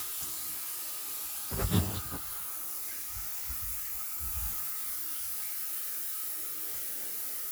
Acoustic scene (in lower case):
restroom